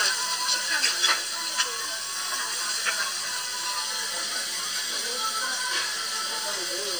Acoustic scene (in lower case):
restaurant